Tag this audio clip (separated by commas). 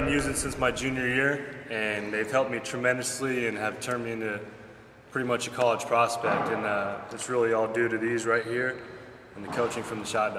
Speech